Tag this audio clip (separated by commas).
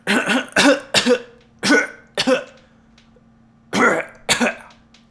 Cough, Respiratory sounds